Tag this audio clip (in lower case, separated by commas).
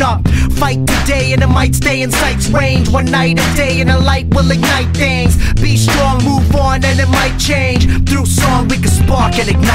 exciting music, music, blues, independent music